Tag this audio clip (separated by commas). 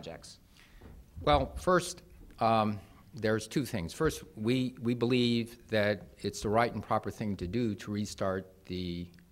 Speech, Male speech, Conversation, Narration